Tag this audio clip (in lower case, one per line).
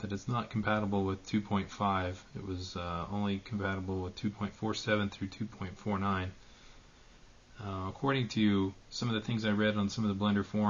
speech